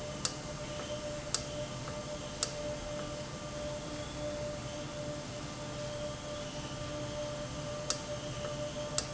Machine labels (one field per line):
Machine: valve